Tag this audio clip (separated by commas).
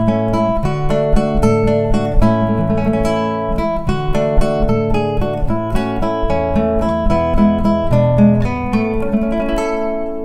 Strum, Acoustic guitar, Plucked string instrument, Musical instrument, Electric guitar, Music, Guitar